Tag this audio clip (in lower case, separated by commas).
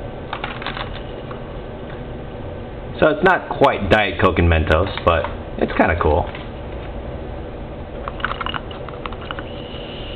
speech